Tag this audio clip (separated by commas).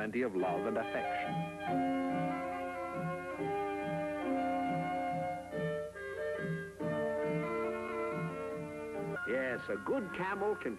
Speech, Music